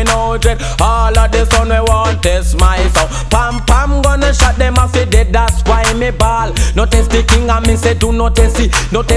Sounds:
Music

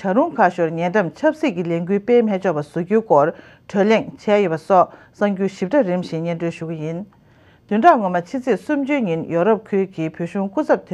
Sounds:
Speech

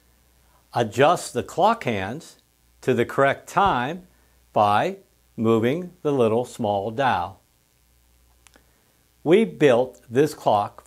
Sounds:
Speech

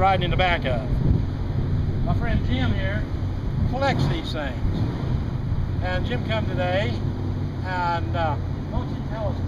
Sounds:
Speech

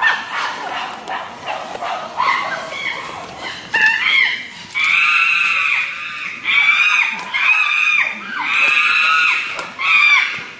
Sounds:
chimpanzee pant-hooting

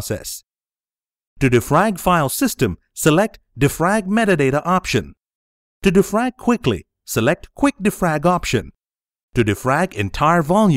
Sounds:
Speech

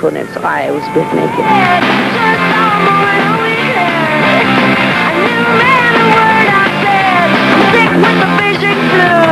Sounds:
Speech, Music

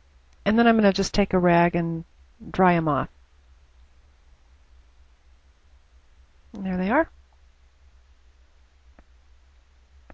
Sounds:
Speech

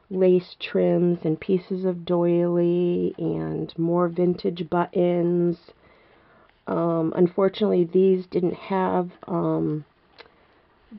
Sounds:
Speech

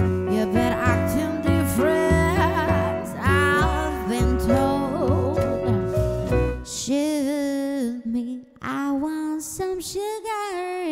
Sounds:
Singing

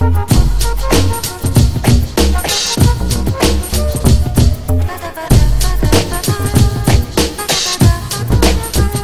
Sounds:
Dubstep, Electronic music, Music

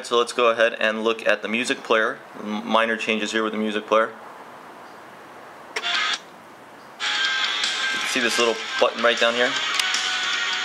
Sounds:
Music, inside a small room, Speech

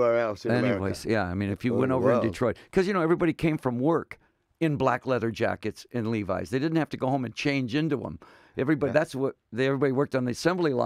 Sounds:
Speech

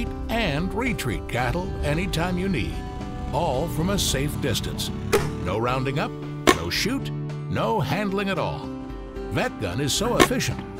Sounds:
Music, Speech

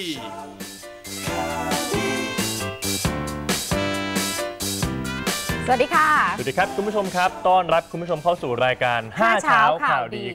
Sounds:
Speech, Music, inside a small room

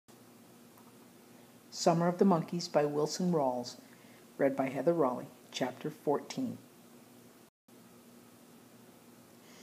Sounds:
inside a small room, Speech

